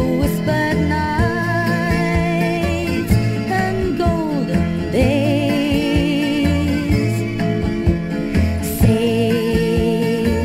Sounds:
Music

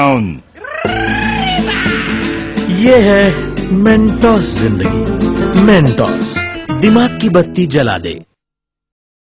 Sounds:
Speech, Music

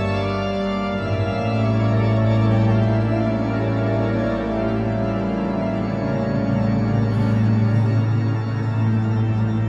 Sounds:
Hammond organ, Organ

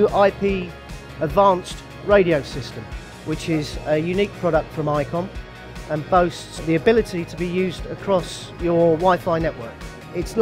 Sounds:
Speech, Music

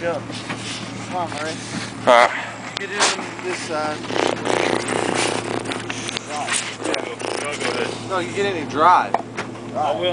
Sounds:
Speech

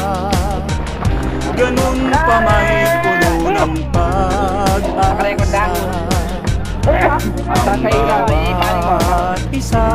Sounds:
Speech, Music

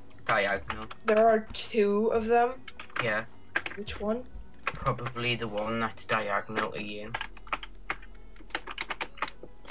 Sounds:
Computer keyboard, Speech

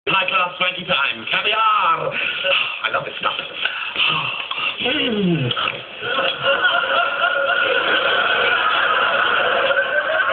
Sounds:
Speech, inside a small room

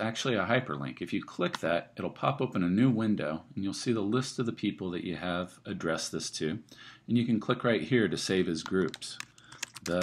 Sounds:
Speech

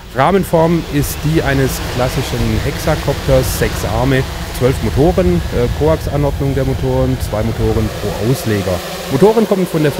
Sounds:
Speech

